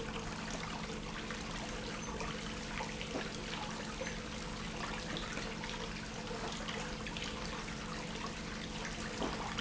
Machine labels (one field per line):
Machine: pump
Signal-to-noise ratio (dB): 0 dB